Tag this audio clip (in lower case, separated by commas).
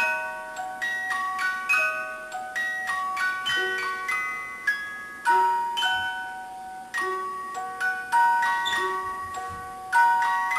tick-tock